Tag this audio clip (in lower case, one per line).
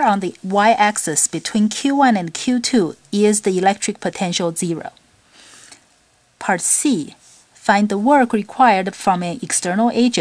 speech